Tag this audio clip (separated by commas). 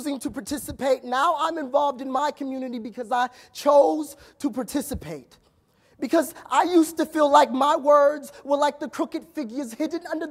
Speech